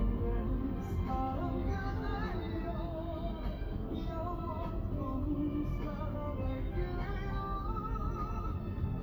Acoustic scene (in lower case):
car